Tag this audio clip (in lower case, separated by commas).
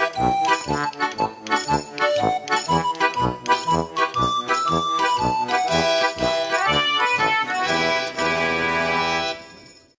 music